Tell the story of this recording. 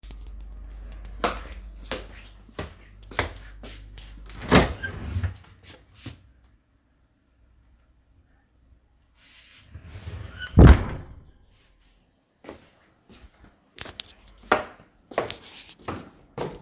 I went to the kitchen and approached the fridge. I opened the fridge door to look inside, then I closed it after a few seconds. Then I walked out of thew kitchen.